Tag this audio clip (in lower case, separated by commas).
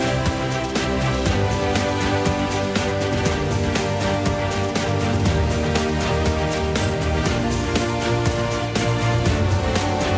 music, funk